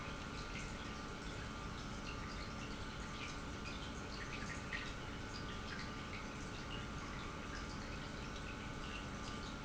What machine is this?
pump